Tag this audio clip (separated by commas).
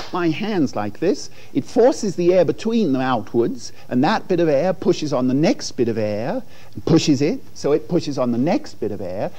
Speech